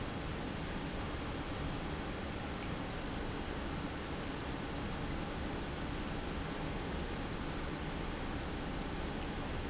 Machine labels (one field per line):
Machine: pump